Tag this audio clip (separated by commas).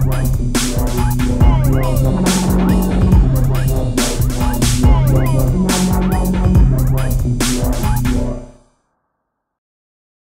Music, Sampler, Electronic music, Dubstep